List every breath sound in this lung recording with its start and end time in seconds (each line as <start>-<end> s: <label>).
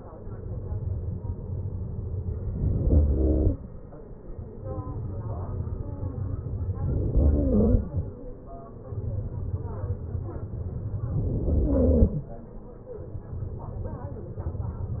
3.67-5.25 s: exhalation
6.99-7.88 s: inhalation
7.88-9.83 s: exhalation
11.01-12.09 s: inhalation
12.09-13.87 s: exhalation